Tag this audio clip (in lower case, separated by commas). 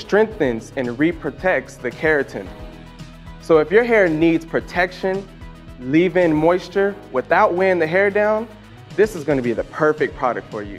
music, speech